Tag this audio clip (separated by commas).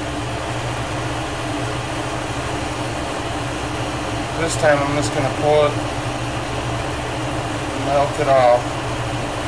Speech